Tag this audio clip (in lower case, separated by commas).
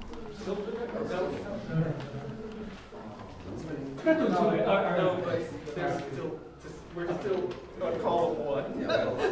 speech